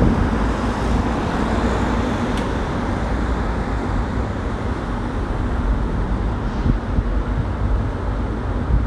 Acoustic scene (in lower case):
street